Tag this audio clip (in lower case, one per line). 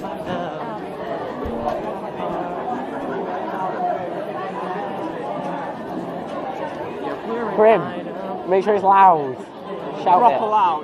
speech